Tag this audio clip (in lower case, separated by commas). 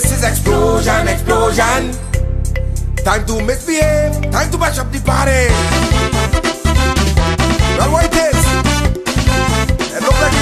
music